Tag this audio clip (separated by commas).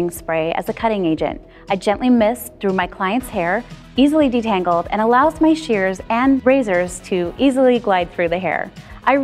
Music, Speech